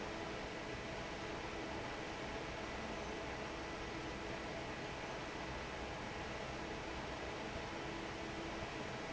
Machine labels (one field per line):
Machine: fan